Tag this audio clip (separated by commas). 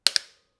Vehicle, Bicycle, Mechanisms